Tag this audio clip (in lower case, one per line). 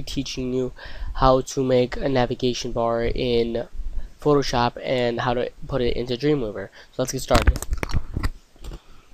speech